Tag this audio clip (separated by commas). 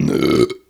Burping